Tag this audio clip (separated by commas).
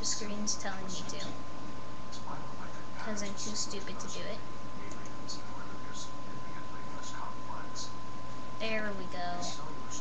Speech